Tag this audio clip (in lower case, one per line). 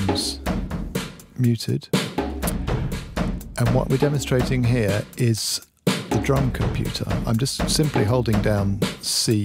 speech
music
drum
musical instrument